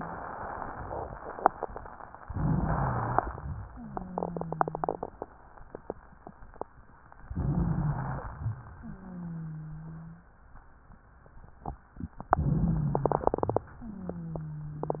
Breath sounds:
2.22-3.40 s: inhalation
2.22-3.40 s: rhonchi
3.66-5.07 s: wheeze
7.27-8.50 s: inhalation
7.27-8.50 s: wheeze
8.75-10.32 s: wheeze
12.31-13.39 s: inhalation
12.31-13.39 s: wheeze
13.85-15.00 s: wheeze

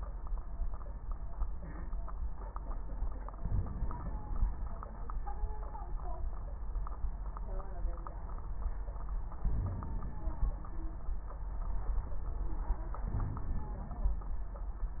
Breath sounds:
3.37-4.45 s: inhalation
3.37-4.45 s: crackles
9.42-10.51 s: inhalation
9.42-10.51 s: crackles
13.07-14.16 s: inhalation
13.07-14.16 s: crackles

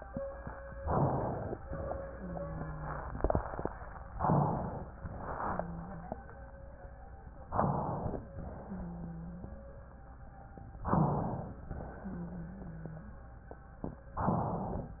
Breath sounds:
0.82-1.56 s: inhalation
2.13-3.04 s: wheeze
4.21-5.05 s: inhalation
5.37-6.28 s: wheeze
7.53-8.27 s: inhalation
8.67-9.73 s: wheeze
10.89-11.63 s: inhalation
12.03-13.19 s: wheeze
14.25-15.00 s: inhalation

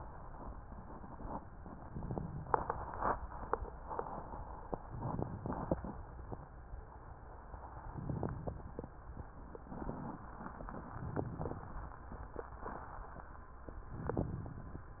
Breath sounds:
4.90-6.00 s: inhalation
4.90-6.00 s: crackles
7.88-8.93 s: inhalation
7.88-8.93 s: crackles
10.75-11.93 s: inhalation
10.75-11.93 s: crackles

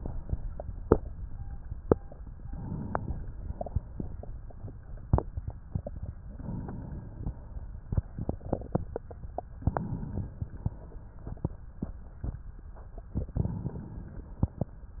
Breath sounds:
2.38-3.37 s: inhalation
3.36-4.40 s: exhalation
3.36-4.40 s: crackles
6.22-7.39 s: inhalation
7.41-8.58 s: exhalation
7.41-8.58 s: crackles
9.55-10.72 s: inhalation
13.25-14.58 s: inhalation

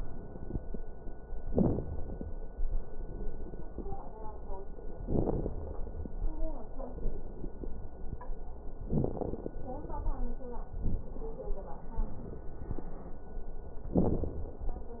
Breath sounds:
0.00-0.75 s: inhalation
0.00-0.75 s: crackles
1.47-1.93 s: exhalation
1.47-1.93 s: crackles
2.68-4.03 s: inhalation
2.68-4.03 s: crackles
4.97-5.57 s: exhalation
4.97-5.57 s: crackles
6.98-7.94 s: inhalation
6.98-7.94 s: crackles
8.80-9.61 s: exhalation
8.80-9.61 s: crackles
11.98-12.84 s: inhalation
11.98-12.84 s: crackles
13.90-14.64 s: exhalation
13.90-14.64 s: crackles

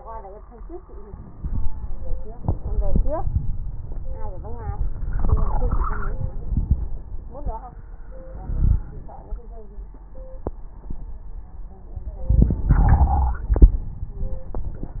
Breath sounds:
1.05-2.15 s: inhalation
4.92-6.38 s: inhalation
4.92-6.38 s: crackles
8.18-9.38 s: inhalation
8.48-9.02 s: wheeze
12.21-13.40 s: inhalation
13.40-14.47 s: exhalation
13.40-14.47 s: crackles

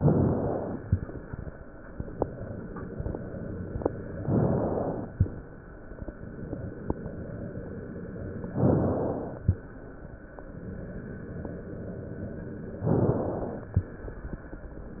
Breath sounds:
0.00-0.88 s: inhalation
4.18-5.12 s: inhalation
5.12-6.00 s: exhalation
8.44-9.41 s: inhalation
9.42-10.29 s: exhalation
12.80-13.71 s: inhalation
13.71-14.63 s: exhalation

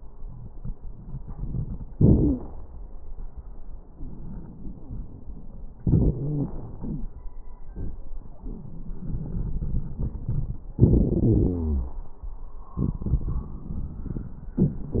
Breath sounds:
1.19-1.87 s: inhalation
1.19-1.87 s: crackles
1.90-2.49 s: exhalation
2.16-2.43 s: wheeze
5.85-6.48 s: wheeze
5.88-6.50 s: inhalation
6.49-7.12 s: exhalation
6.80-7.12 s: wheeze
9.97-10.67 s: inhalation
10.82-12.00 s: exhalation
11.10-12.00 s: wheeze

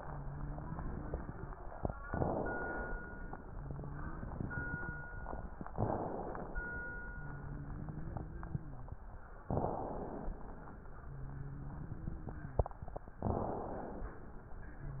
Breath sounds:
0.00-1.54 s: wheeze
2.05-3.03 s: inhalation
3.45-5.11 s: wheeze
5.74-6.91 s: inhalation
7.09-8.95 s: wheeze
9.48-10.64 s: inhalation
11.00-12.76 s: wheeze
13.21-14.38 s: inhalation
14.76-15.00 s: wheeze
14.78-15.00 s: wheeze

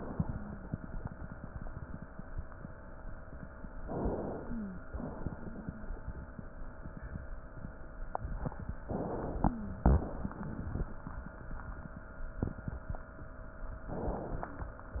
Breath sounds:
3.76-4.90 s: inhalation
4.44-4.85 s: wheeze
4.90-6.26 s: exhalation
8.86-9.82 s: inhalation
9.45-9.80 s: wheeze
9.84-11.20 s: exhalation
13.88-14.94 s: inhalation
14.94-15.00 s: exhalation

